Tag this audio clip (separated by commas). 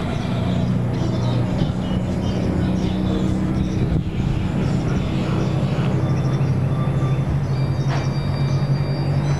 Animal